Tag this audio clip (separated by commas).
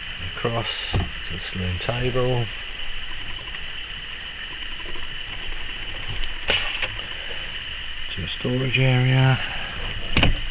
Speech